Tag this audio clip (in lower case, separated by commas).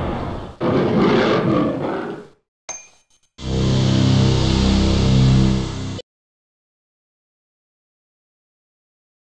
music